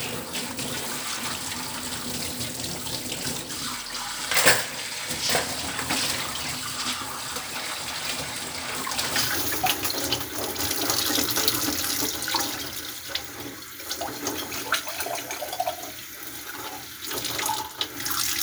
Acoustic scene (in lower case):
kitchen